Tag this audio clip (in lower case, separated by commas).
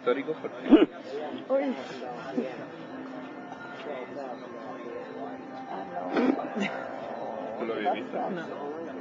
speech